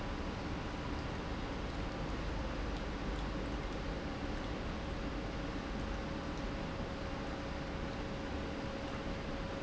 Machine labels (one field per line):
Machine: pump